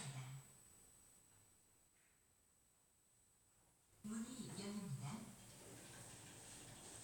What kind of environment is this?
elevator